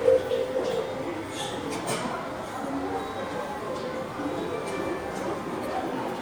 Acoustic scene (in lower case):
subway station